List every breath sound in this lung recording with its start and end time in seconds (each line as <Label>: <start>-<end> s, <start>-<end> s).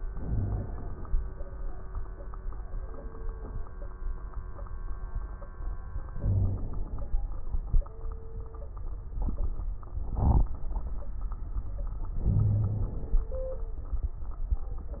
Inhalation: 0.11-1.07 s, 6.14-7.13 s, 12.20-13.27 s
Wheeze: 0.24-0.66 s, 6.20-6.61 s, 12.20-12.93 s